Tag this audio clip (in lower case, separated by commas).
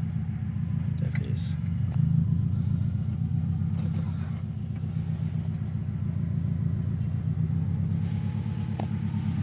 vehicle, speech, car, outside, urban or man-made